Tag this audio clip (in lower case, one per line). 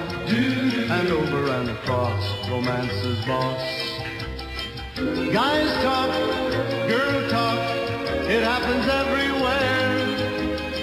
music